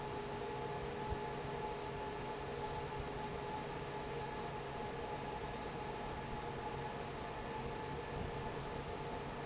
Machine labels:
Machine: fan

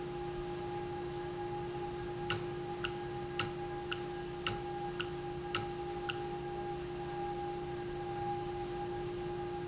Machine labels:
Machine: valve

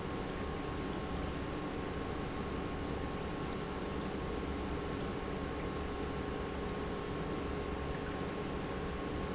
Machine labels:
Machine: pump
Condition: normal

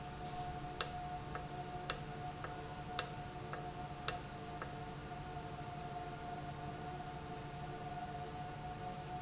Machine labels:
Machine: valve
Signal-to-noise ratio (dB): 0 dB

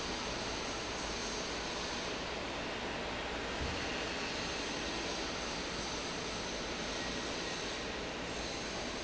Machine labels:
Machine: fan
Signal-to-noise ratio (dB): -6 dB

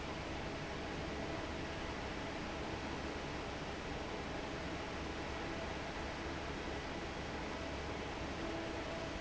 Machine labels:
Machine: fan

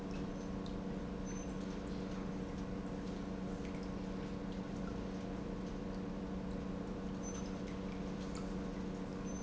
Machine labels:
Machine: pump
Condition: normal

